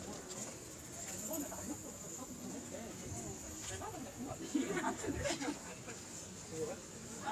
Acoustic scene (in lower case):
park